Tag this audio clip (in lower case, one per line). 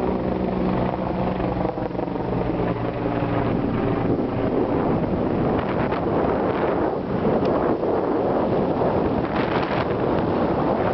vehicle